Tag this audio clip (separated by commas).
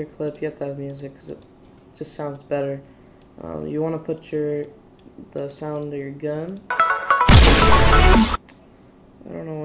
Music, Speech